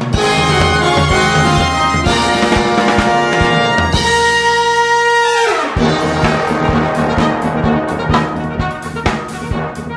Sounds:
Drum, Music

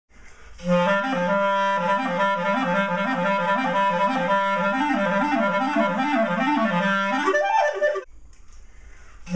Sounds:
playing clarinet

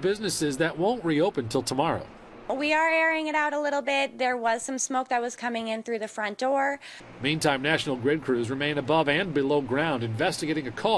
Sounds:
Speech

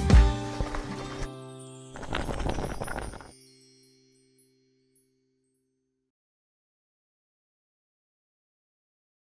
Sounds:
Music

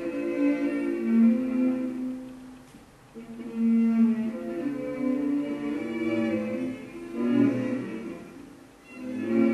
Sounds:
Music

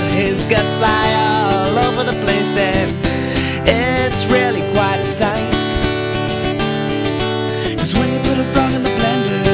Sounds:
Music

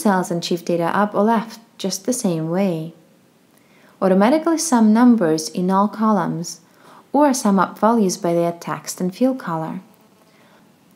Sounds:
Speech

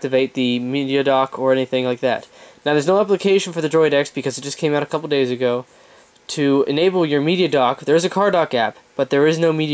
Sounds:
Speech

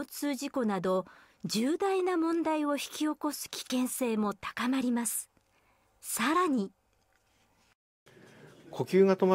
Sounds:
Speech

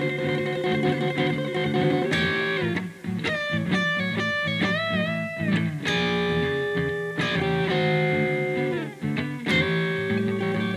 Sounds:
Music, Guitar

